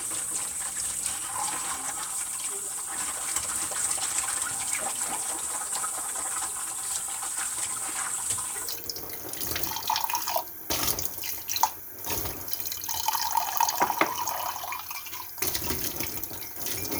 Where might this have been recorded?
in a kitchen